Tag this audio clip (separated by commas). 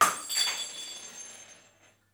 Shatter, Glass